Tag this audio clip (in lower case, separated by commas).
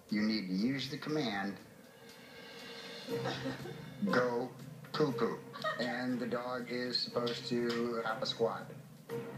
speech, music